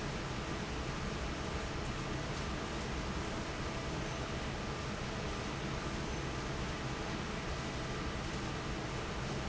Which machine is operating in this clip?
fan